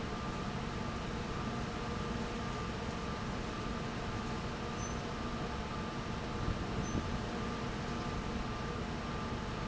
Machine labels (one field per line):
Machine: fan